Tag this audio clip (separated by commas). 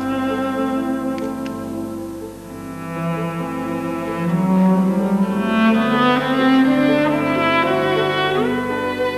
Music